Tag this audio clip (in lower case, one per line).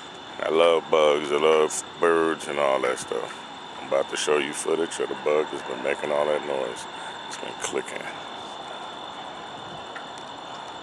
speech